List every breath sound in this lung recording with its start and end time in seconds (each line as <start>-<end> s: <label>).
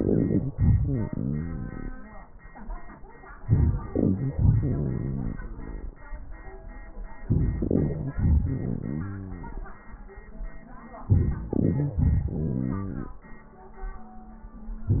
0.58-2.32 s: exhalation
3.47-4.37 s: inhalation
4.35-6.00 s: exhalation
7.19-8.15 s: inhalation
8.16-9.84 s: exhalation
11.06-11.96 s: inhalation
12.01-13.15 s: exhalation